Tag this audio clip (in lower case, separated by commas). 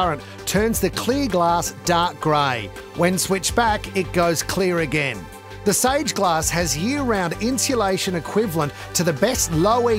music, speech